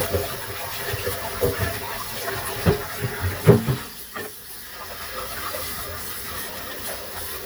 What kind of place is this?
kitchen